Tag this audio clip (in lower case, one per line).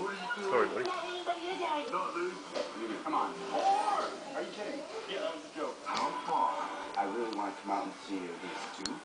speech